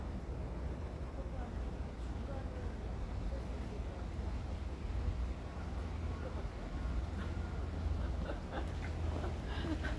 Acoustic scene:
residential area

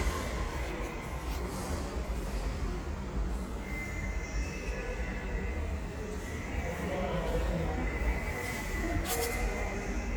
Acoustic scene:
subway station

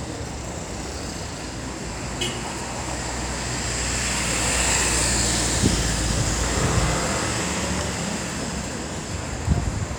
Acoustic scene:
street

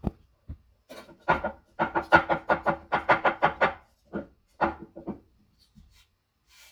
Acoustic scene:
kitchen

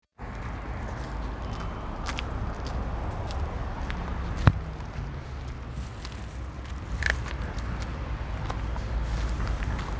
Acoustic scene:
residential area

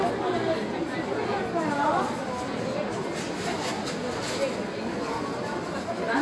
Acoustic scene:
crowded indoor space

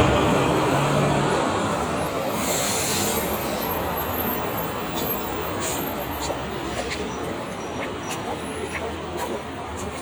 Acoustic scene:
street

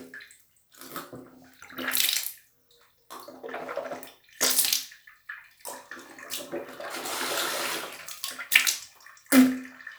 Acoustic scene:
restroom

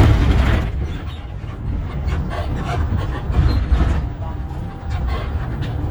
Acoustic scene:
bus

